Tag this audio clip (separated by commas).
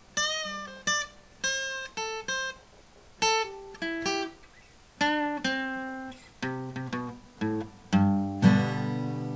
Plucked string instrument, Strum, Guitar, Musical instrument